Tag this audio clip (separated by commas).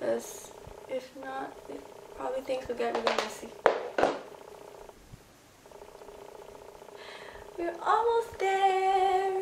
Speech, inside a small room